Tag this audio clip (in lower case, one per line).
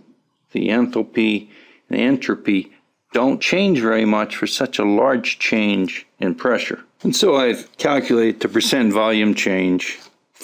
speech